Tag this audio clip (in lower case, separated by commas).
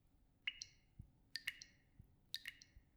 water, domestic sounds, sink (filling or washing), liquid, faucet, drip